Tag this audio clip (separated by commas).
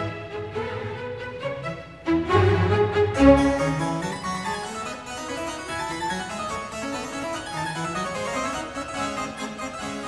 playing harpsichord